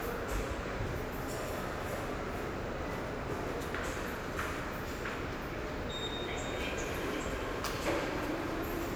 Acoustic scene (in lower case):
subway station